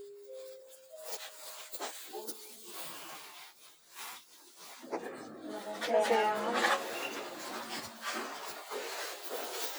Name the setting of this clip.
elevator